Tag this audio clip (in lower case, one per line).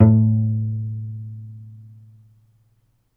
bowed string instrument
musical instrument
music